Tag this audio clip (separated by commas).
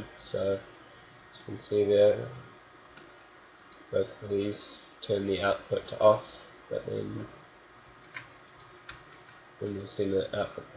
Speech